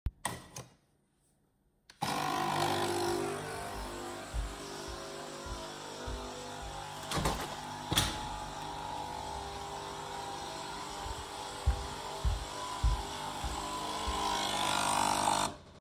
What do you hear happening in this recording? I put the cup under the coffee machine on the table, and started the coffee machine. In the meantime I walked across the kitchen and closed the window. Then I walked back to the coffee machine.